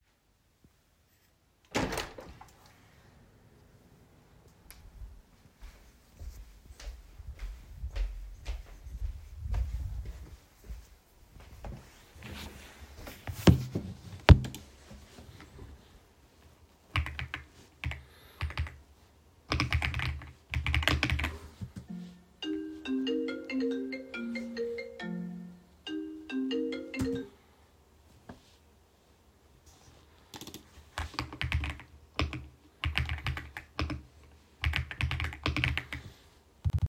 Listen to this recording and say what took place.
I entered my room, sat down at my desk and started typing on the keyboard. I got a phone call, silenced it and kept typing.